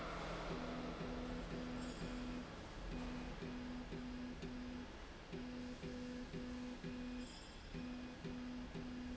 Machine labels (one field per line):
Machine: slide rail